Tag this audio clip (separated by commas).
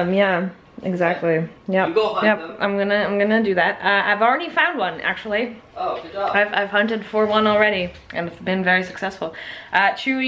Speech